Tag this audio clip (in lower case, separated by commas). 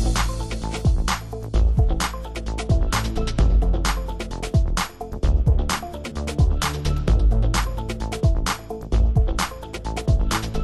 music